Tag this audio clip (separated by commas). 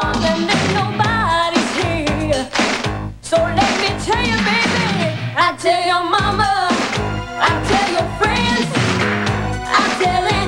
Music